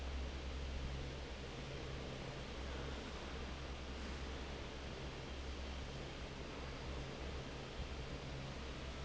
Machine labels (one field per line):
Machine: fan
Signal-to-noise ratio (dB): 6 dB